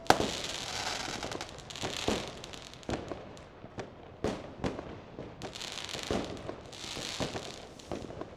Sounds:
Fireworks, Explosion

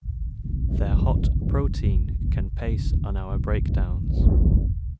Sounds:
Wind, Human voice, Speech

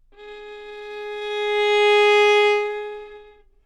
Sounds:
Music, Bowed string instrument, Musical instrument

